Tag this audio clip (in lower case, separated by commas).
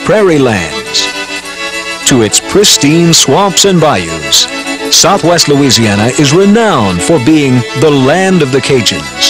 music, speech